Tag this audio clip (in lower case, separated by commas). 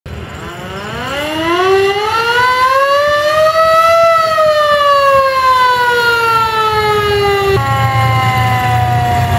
civil defense siren, siren